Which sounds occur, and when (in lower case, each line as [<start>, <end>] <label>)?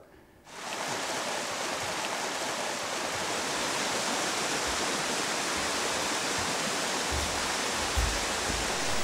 [0.00, 0.42] background noise
[0.41, 9.03] waterfall